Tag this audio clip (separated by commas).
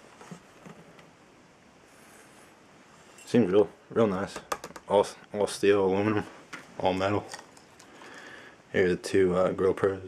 Speech